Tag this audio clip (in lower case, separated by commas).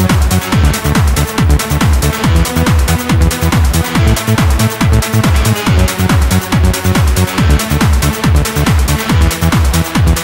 music